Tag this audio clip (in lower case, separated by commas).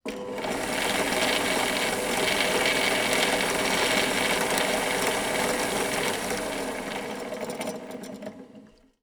drill, power tool, mechanisms, tools